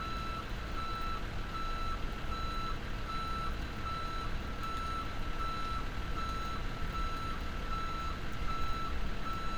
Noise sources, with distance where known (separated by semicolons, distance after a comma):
reverse beeper